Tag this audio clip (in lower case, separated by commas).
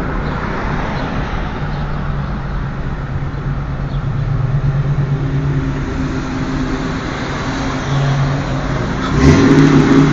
vehicle, outside, urban or man-made, car, race car